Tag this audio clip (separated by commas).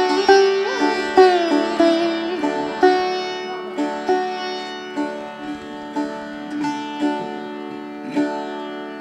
Plucked string instrument, Musical instrument, Sitar, Bowed string instrument, Music